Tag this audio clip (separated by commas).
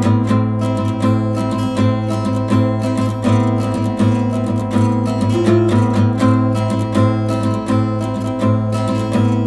Music